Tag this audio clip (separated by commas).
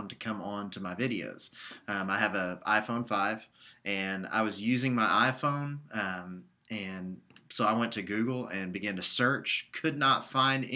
Speech